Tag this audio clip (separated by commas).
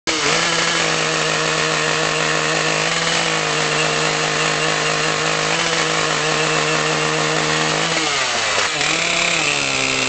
Chainsaw, chainsawing trees